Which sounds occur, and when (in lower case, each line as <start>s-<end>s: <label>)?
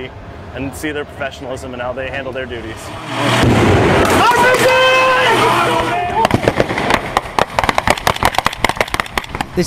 0.0s-9.6s: noise
0.0s-9.6s: truck
0.4s-2.7s: man speaking
4.0s-5.1s: man speaking
5.4s-6.3s: man speaking
6.2s-9.4s: gunfire